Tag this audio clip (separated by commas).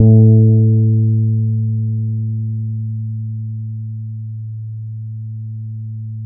Plucked string instrument, Guitar, Musical instrument, Bass guitar, Music